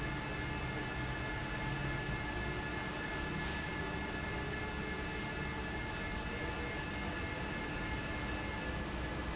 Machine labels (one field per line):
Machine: fan